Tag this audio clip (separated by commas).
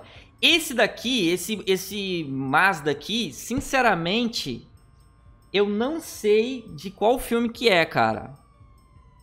striking pool